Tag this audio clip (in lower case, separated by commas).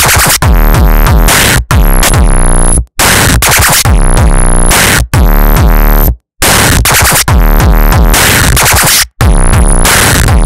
hip hop music, music